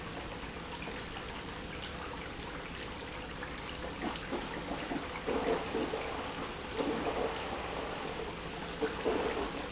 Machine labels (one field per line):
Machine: pump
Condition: abnormal